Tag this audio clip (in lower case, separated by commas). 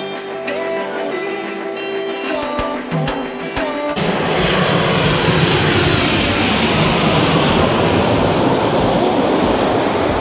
airplane flyby